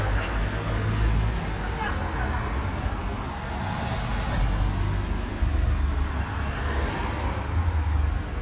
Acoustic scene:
street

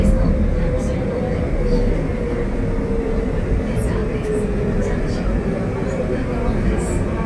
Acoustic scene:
subway train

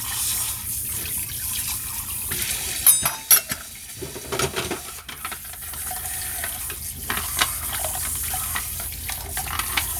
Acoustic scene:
kitchen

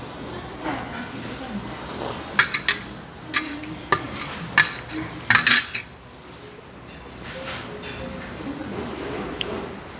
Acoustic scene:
restaurant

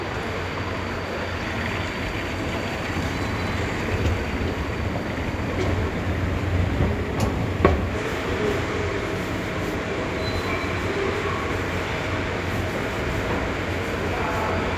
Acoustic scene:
subway station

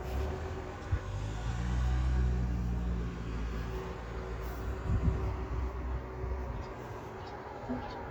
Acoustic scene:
street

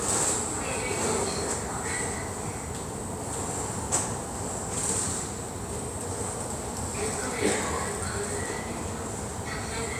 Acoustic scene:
subway station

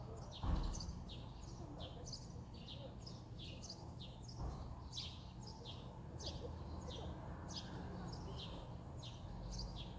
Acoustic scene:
residential area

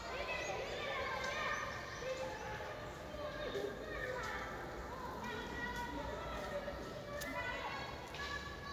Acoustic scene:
park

